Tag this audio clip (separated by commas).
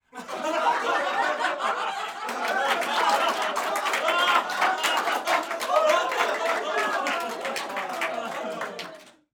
Human group actions, Applause, Crowd